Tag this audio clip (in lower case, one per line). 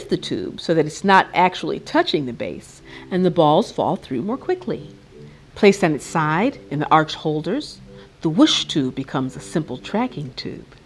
music
speech